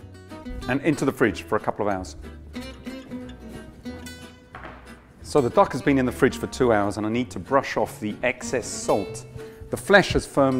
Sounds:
speech
music

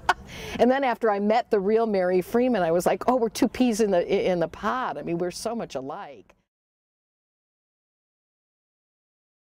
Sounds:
speech

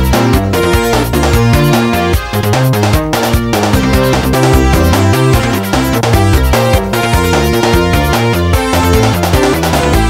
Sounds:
music

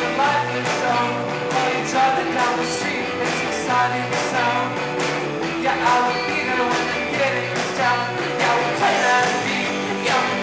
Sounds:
music

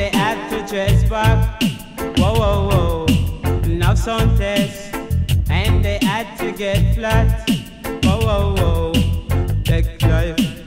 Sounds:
music

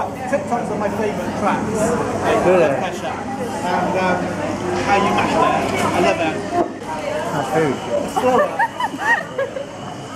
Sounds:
speech
inside a public space

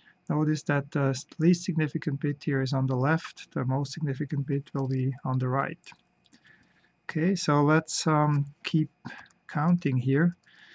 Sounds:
speech

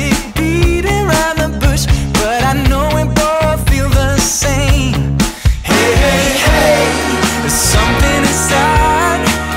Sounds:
music

